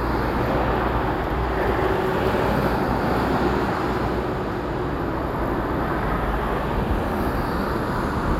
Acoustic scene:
street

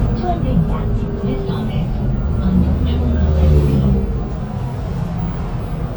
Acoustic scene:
bus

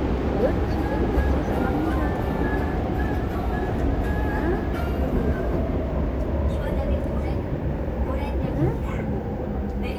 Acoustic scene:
subway train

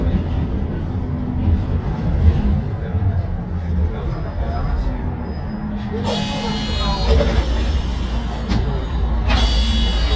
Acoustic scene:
bus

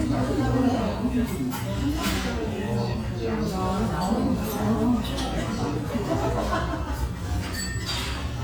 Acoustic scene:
restaurant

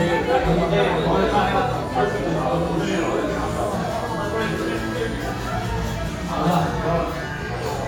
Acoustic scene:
crowded indoor space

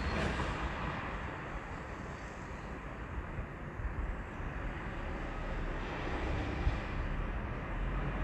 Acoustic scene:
residential area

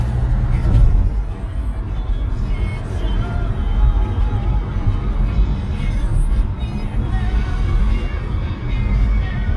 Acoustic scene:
car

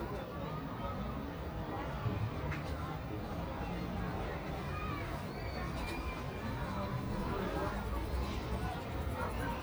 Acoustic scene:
residential area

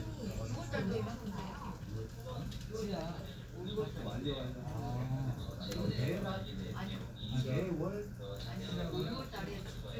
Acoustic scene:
crowded indoor space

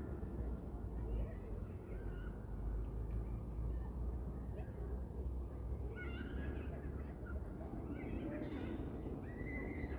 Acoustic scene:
residential area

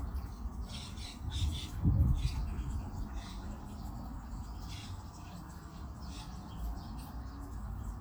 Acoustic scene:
park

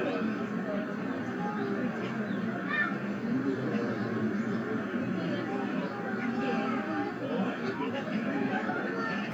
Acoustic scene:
residential area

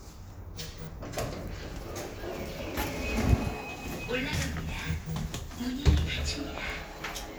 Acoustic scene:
elevator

